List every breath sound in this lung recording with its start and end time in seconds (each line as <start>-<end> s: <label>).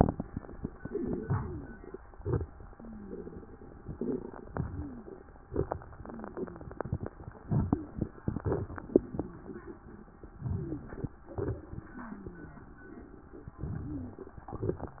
0.82-1.95 s: inhalation
1.40-1.95 s: wheeze
2.17-3.92 s: exhalation
2.72-3.34 s: wheeze
4.48-5.49 s: inhalation
4.61-5.12 s: wheeze
5.52-7.39 s: exhalation
5.99-6.63 s: wheeze
7.65-8.45 s: inhalation
8.60-10.23 s: exhalation
8.99-9.40 s: wheeze
10.34-11.32 s: inhalation
10.46-10.87 s: wheeze
11.37-13.41 s: exhalation
11.93-12.63 s: wheeze
13.44-14.51 s: inhalation
13.58-14.18 s: wheeze
14.62-15.00 s: exhalation